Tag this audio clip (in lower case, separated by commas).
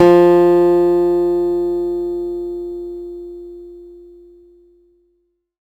music, guitar, plucked string instrument, musical instrument, acoustic guitar